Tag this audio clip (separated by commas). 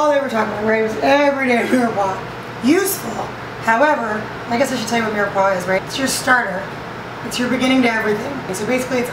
Speech